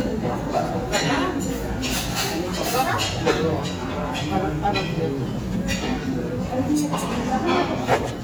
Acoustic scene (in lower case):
restaurant